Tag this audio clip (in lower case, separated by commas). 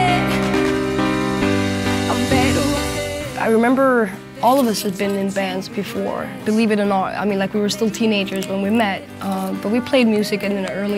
speech, music